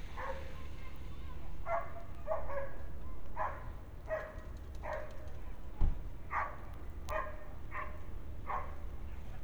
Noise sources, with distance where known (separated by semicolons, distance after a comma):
dog barking or whining, near